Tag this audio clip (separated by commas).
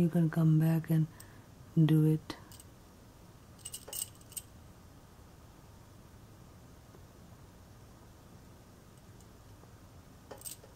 inside a small room, Speech